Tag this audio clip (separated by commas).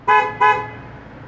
Truck, Vehicle, Motor vehicle (road), Alarm